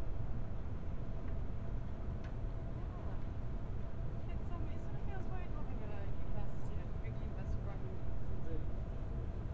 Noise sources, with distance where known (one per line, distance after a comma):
person or small group talking, far